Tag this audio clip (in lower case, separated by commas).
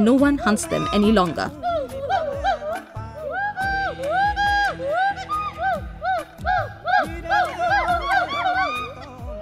gibbon howling